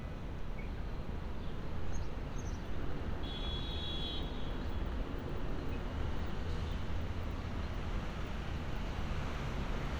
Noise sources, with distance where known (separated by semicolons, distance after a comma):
car horn